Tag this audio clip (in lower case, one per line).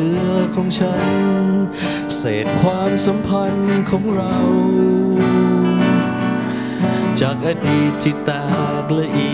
music